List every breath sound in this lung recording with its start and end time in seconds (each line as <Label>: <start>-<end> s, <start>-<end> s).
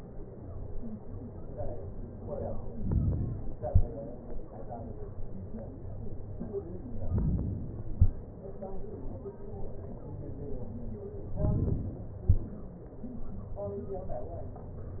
Inhalation: 2.77-3.66 s, 7.04-7.92 s, 11.41-12.20 s